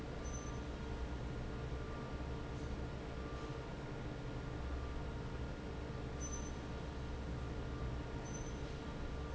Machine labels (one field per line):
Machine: fan